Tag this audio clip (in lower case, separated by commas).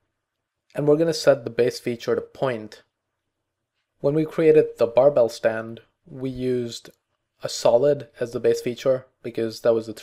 speech